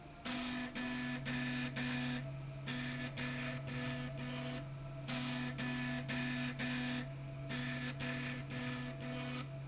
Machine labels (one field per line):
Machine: slide rail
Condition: abnormal